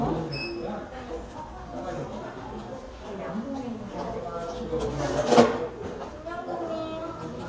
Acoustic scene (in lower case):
crowded indoor space